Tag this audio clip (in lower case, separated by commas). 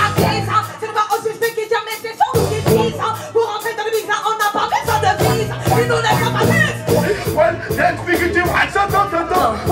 hip hop music, music, singing